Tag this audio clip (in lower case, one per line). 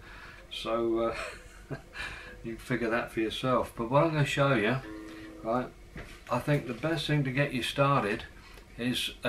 music
speech
steel guitar